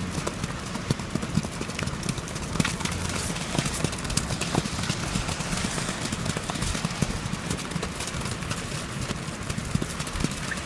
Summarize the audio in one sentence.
Clip-cloping and wind blowing